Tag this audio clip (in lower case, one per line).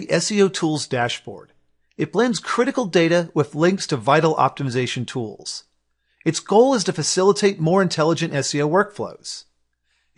speech